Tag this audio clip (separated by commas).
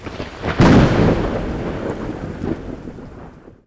Thunderstorm, Thunder